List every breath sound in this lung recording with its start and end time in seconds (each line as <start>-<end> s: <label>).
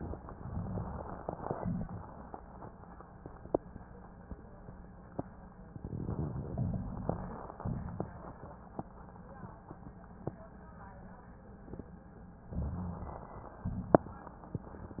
0.04-1.54 s: inhalation
0.04-1.54 s: crackles
1.56-2.01 s: exhalation
5.66-7.53 s: inhalation
5.66-7.53 s: crackles
7.61-8.26 s: exhalation
12.43-13.57 s: crackles
12.47-13.61 s: inhalation
13.66-14.08 s: exhalation